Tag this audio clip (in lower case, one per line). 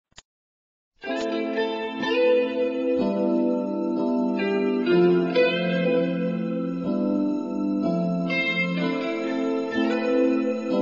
steel guitar
music